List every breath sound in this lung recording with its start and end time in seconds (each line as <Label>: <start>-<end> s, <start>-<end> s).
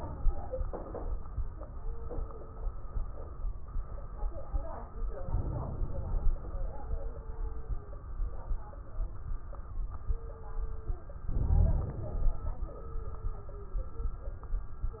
Inhalation: 5.25-6.35 s, 11.29-12.39 s
Wheeze: 11.29-11.95 s
Crackles: 5.25-6.35 s